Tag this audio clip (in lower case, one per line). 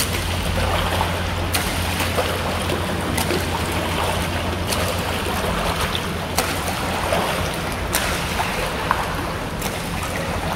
swimming